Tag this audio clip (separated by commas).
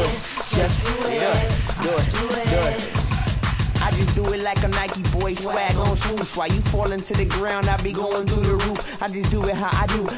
Music, Rhythm and blues